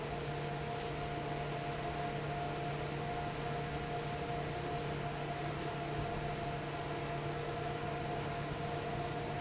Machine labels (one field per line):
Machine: fan